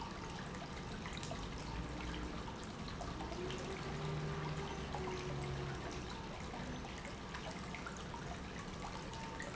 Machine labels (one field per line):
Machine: pump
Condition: normal